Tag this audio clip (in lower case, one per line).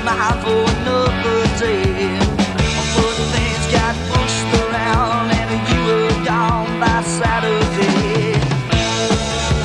music